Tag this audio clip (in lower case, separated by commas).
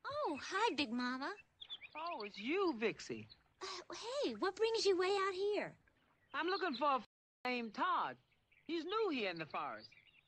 speech